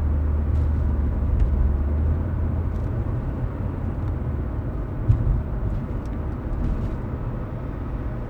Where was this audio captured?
in a car